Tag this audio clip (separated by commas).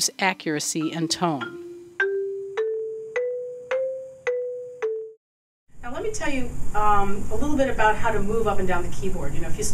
Percussion, Musical instrument, Music, Speech